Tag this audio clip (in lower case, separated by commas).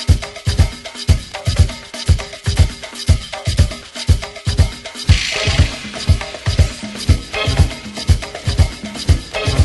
music